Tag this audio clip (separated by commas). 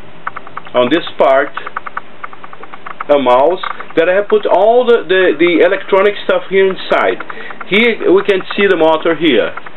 Speech